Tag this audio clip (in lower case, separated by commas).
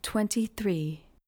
human voice, speech, woman speaking